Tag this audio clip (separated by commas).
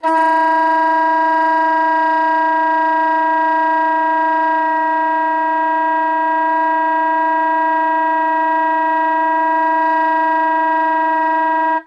Music, Wind instrument, Musical instrument